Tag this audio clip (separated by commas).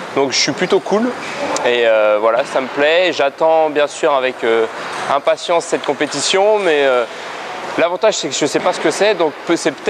Speech